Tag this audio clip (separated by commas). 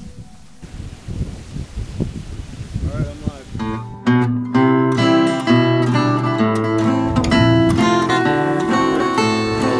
Speech, Acoustic guitar, Music, Strum